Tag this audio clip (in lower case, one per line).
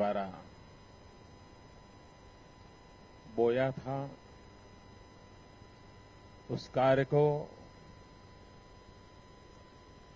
man speaking
monologue
speech